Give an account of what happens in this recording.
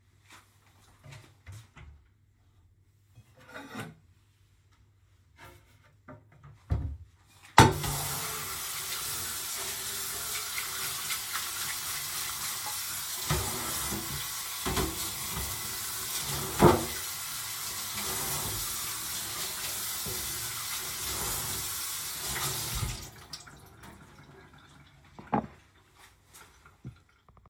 i flushed the toilet, walked to the wash basin, turned on the tap, washed my hands, walked to the door, opened the door ,switched off the lights, walked out of the bathroom, closed the door